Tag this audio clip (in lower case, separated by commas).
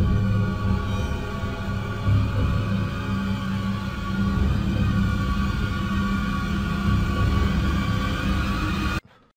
music, musical instrument, violin